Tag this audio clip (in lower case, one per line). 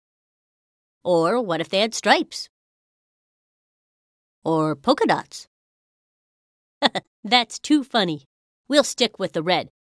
speech